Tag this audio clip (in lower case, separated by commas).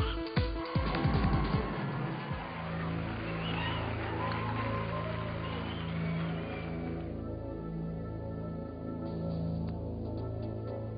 speech, music